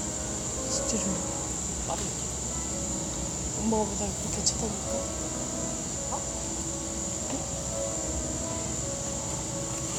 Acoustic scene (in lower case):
cafe